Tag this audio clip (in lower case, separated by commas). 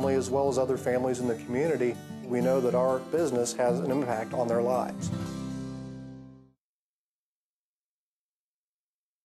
speech, music